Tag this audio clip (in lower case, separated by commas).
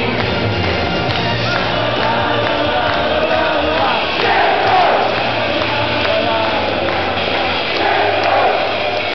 male singing, choir, music